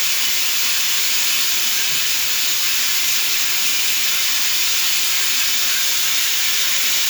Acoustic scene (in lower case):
restroom